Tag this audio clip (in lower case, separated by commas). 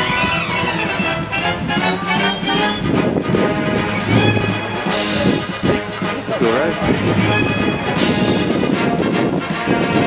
music, speech